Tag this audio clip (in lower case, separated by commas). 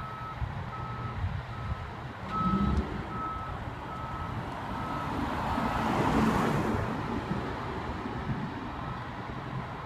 car, vehicle